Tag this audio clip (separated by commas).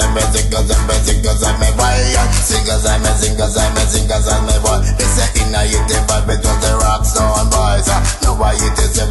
Music